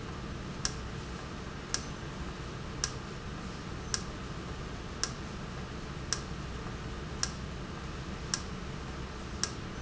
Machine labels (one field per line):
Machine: valve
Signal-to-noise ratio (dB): -6 dB